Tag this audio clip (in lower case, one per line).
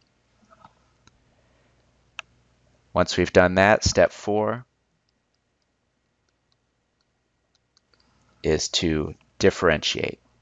speech